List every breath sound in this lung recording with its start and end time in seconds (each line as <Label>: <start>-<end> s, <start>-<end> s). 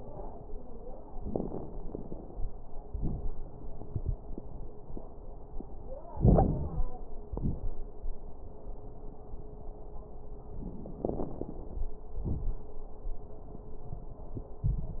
Inhalation: 6.17-6.84 s, 11.00-11.91 s
Exhalation: 7.27-7.80 s, 12.20-12.65 s
Crackles: 6.17-6.84 s, 7.27-7.80 s, 11.00-11.91 s, 12.20-12.65 s